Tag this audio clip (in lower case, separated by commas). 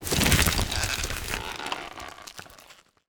crumpling